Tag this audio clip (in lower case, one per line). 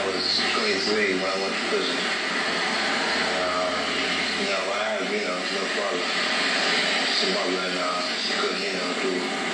speech